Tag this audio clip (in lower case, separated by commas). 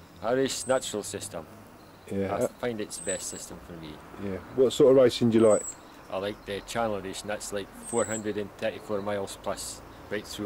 speech, bird, animal